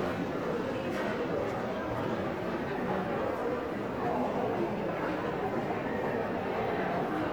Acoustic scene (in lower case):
crowded indoor space